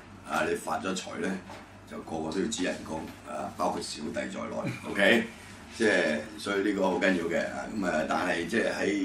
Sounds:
Speech

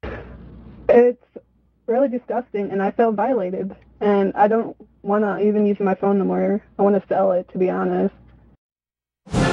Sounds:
Music, Speech

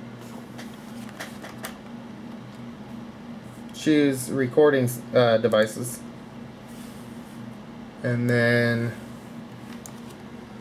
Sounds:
Speech

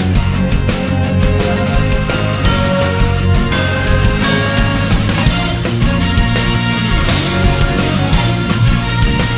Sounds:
Video game music, Music

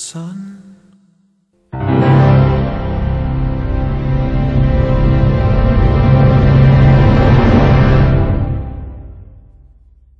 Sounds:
Theme music

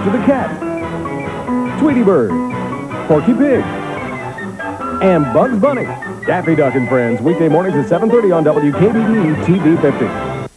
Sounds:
Speech, Music

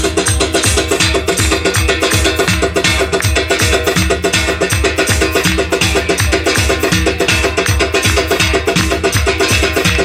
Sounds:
Music

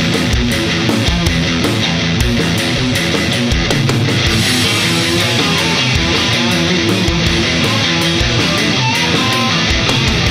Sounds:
Rock and roll, Music

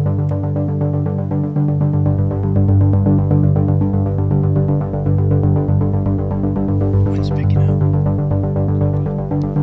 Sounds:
Music

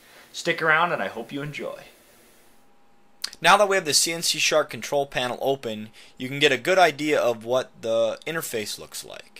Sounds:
Speech

